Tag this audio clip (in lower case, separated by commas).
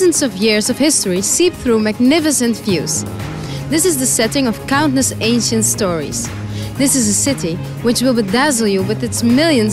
music, speech